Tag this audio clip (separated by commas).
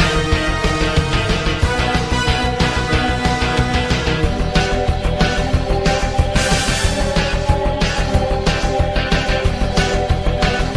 Music, Theme music